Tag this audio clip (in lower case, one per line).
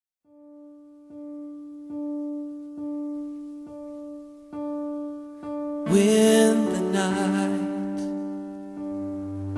electric piano
music
keyboard (musical)